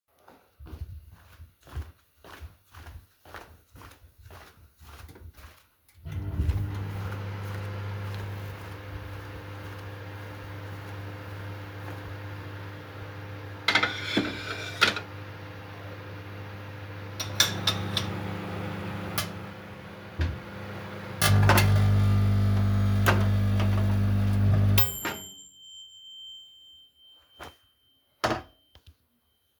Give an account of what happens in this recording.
I went to the coffee machine and made a coffee, after that i turned on the microwave. I grabbed a plate and paniced as the microwave started burning and quickly turned it off.